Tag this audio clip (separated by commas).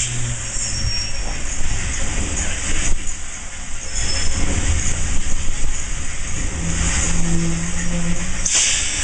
Hiss, Steam